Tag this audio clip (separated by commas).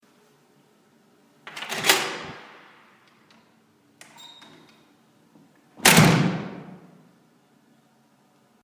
Door, home sounds, Slam